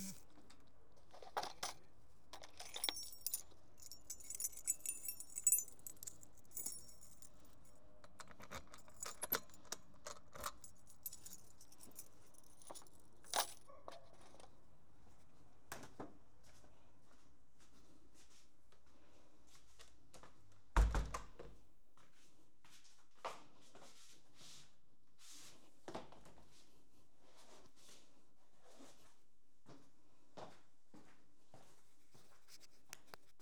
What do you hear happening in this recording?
I opened a box to take the key, opened the door, put it back into the box and then changed from my shoes to slippers.